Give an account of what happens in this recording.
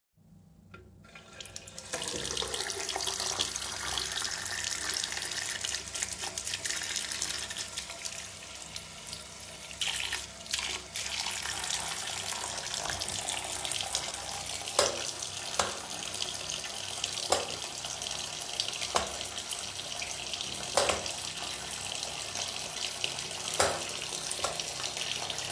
I'm washing my hands. Meanwhile somebody turns the lights on and off using the light switch